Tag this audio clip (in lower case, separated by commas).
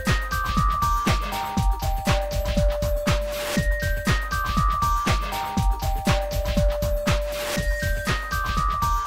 music